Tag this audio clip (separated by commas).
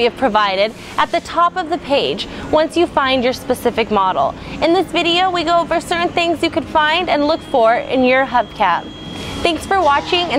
Speech